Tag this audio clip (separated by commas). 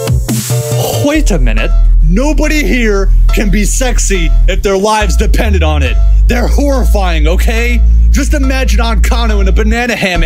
Speech, Music, Electronic music, Dubstep